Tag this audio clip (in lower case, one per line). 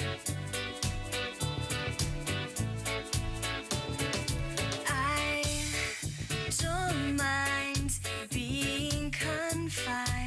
music